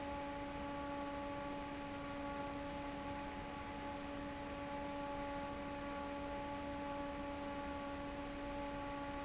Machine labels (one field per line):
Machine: fan